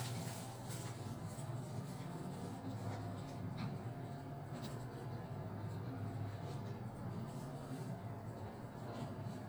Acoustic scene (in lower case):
elevator